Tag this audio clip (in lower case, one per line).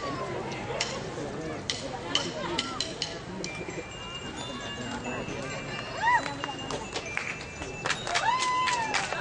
glockenspiel
marimba
mallet percussion